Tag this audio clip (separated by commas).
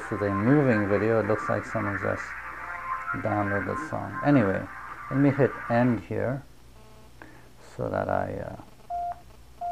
Speech, inside a small room, Music